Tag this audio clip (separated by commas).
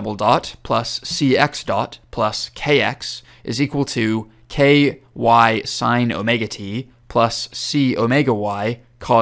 Speech